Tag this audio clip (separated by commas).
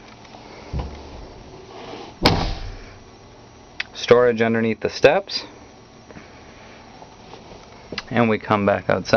inside a small room, Speech